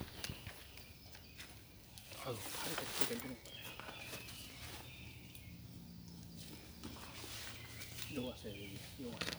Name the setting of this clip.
park